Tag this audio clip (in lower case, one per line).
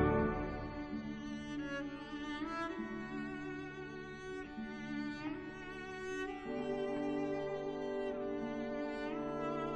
music
cello
orchestra